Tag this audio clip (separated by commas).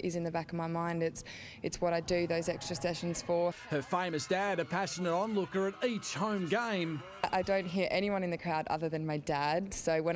Speech